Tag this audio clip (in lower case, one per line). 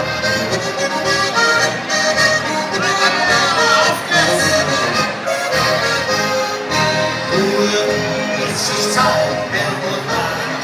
echo
music